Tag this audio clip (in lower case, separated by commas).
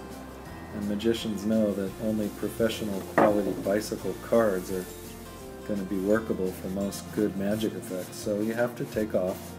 music, speech